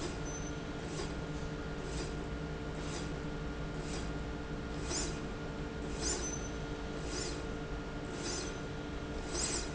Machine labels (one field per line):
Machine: slide rail